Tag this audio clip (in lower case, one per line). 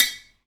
tap